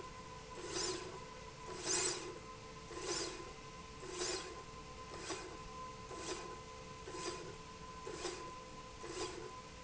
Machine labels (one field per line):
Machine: slide rail